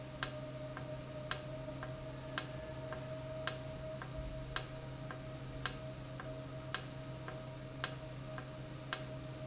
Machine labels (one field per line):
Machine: valve